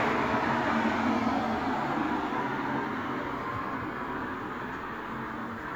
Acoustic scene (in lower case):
street